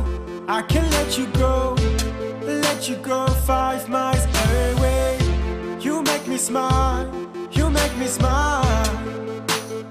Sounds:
Music

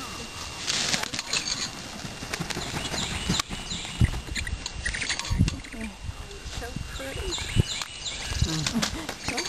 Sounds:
Bird, bird song, tweet

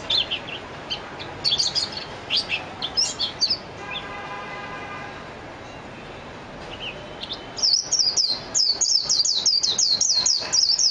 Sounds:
Chirp, tweeting, Bird, bird call, pets

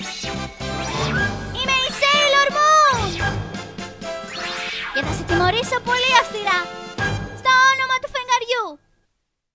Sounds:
Female speech, Music, Speech

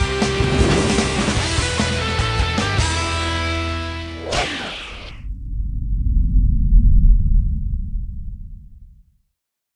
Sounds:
Music

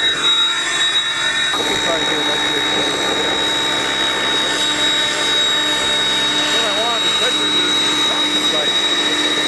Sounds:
Vehicle, Aircraft, Helicopter, outside, rural or natural, Speech

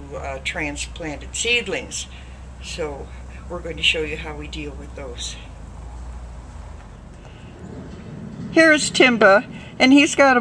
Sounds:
Speech

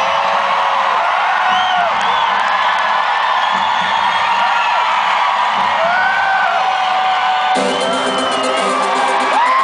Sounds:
Music

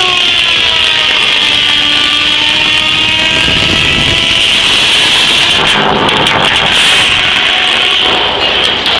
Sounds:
Sawing

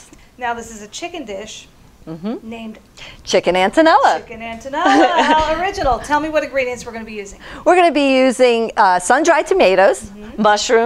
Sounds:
Speech

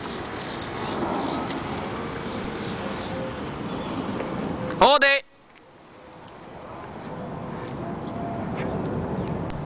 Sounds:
Speech, Vehicle

